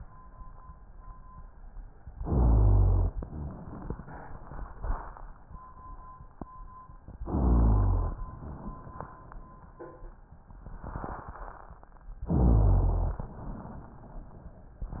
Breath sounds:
2.16-3.12 s: rhonchi
2.17-3.13 s: inhalation
3.15-5.28 s: exhalation
3.15-5.28 s: crackles
7.24-8.20 s: inhalation
7.26-8.21 s: rhonchi
8.22-10.22 s: exhalation
8.22-10.22 s: crackles
12.28-13.24 s: inhalation
12.28-13.24 s: rhonchi

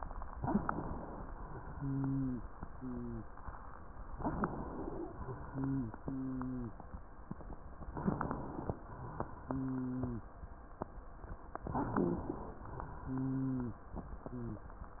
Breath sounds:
0.36-1.23 s: inhalation
1.31-4.06 s: exhalation
1.71-2.41 s: wheeze
2.69-3.31 s: wheeze
4.20-5.38 s: inhalation
5.42-7.81 s: exhalation
5.44-5.99 s: wheeze
6.04-6.75 s: wheeze
7.93-8.76 s: inhalation
8.83-11.55 s: exhalation
9.46-10.28 s: wheeze
11.61-12.65 s: inhalation
11.71-12.45 s: wheeze
12.73-15.00 s: exhalation
13.05-13.83 s: wheeze
14.28-14.72 s: wheeze

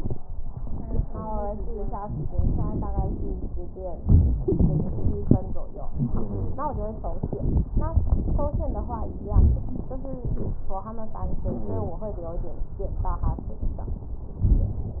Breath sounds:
2.29-3.47 s: exhalation
2.29-3.47 s: crackles
3.99-5.59 s: inhalation
4.03-5.38 s: wheeze
5.84-7.34 s: exhalation
5.93-6.65 s: wheeze
7.38-9.16 s: inhalation
7.38-9.16 s: crackles
9.25-10.89 s: exhalation
9.25-10.89 s: crackles
11.19-12.78 s: inhalation
11.50-12.06 s: wheeze

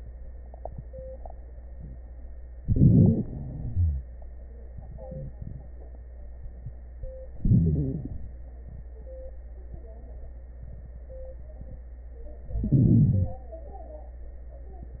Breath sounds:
2.67-3.20 s: inhalation
3.22-4.07 s: exhalation
3.71-4.07 s: wheeze
7.40-8.06 s: inhalation
7.40-8.06 s: wheeze
12.65-13.43 s: inhalation

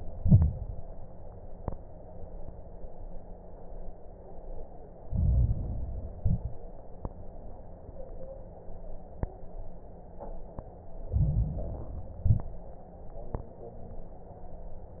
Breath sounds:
0.00-0.72 s: exhalation
0.00-0.72 s: crackles
5.02-6.12 s: inhalation
5.02-6.12 s: crackles
6.14-6.69 s: exhalation
6.14-6.69 s: crackles
11.02-12.12 s: inhalation
11.02-12.12 s: crackles
12.16-12.71 s: exhalation
12.16-12.71 s: crackles

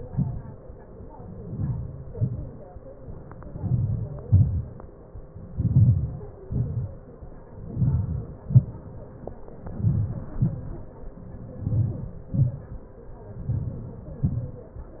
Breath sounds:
1.50-2.07 s: inhalation
2.17-2.60 s: exhalation
3.56-4.22 s: inhalation
4.32-4.75 s: exhalation
5.56-6.22 s: inhalation
6.46-7.01 s: exhalation
7.70-8.28 s: inhalation
8.48-8.94 s: exhalation
9.83-10.32 s: inhalation
10.41-10.82 s: exhalation
11.71-12.22 s: inhalation
12.36-12.75 s: exhalation
13.54-14.01 s: inhalation
14.24-14.61 s: exhalation

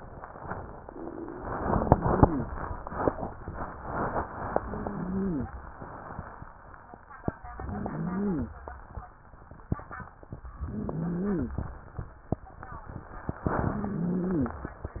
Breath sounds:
1.56-2.51 s: inhalation
1.56-2.51 s: wheeze
4.61-5.52 s: inhalation
4.61-5.52 s: wheeze
7.59-8.50 s: inhalation
7.59-8.50 s: wheeze
10.68-11.59 s: inhalation
10.68-11.59 s: wheeze
13.74-14.78 s: inhalation
13.74-14.78 s: wheeze

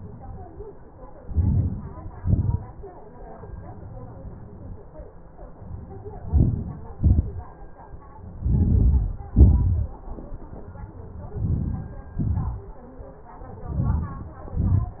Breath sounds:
1.10-2.09 s: inhalation
2.11-2.90 s: exhalation
6.09-7.16 s: inhalation
7.15-7.76 s: exhalation
8.22-9.51 s: inhalation
9.53-10.40 s: exhalation
11.08-12.16 s: inhalation
12.22-12.88 s: exhalation
13.36-14.37 s: inhalation
14.38-15.00 s: exhalation

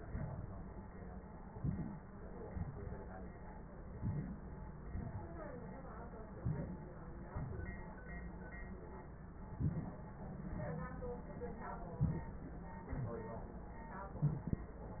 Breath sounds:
1.48-2.11 s: inhalation
2.47-3.09 s: exhalation
3.91-4.54 s: inhalation
4.88-5.69 s: exhalation
6.28-6.93 s: inhalation
7.25-7.89 s: exhalation
9.37-10.04 s: inhalation
11.88-12.45 s: inhalation
12.85-13.59 s: exhalation
14.02-14.76 s: inhalation
14.02-14.76 s: crackles

